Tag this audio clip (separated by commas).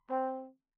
Music, Musical instrument, Brass instrument